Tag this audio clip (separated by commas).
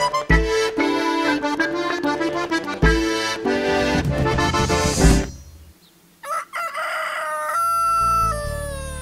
Music, Crowing